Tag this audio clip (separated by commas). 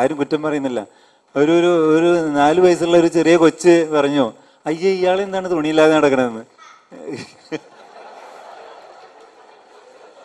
Speech, Male speech, Narration